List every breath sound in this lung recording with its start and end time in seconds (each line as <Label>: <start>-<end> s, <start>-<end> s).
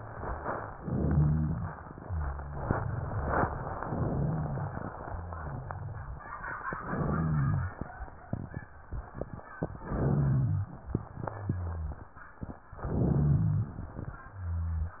Inhalation: 0.77-1.73 s, 3.84-4.89 s, 6.74-7.76 s, 9.76-10.79 s, 12.82-13.83 s
Exhalation: 1.80-2.69 s, 4.93-6.22 s, 10.90-12.10 s
Rhonchi: 0.83-1.78 s, 2.07-2.70 s, 4.11-4.73 s, 5.08-6.22 s, 6.91-7.75 s, 9.87-10.68 s, 11.17-11.95 s, 12.80-13.67 s
Crackles: 3.84-4.89 s, 10.90-12.10 s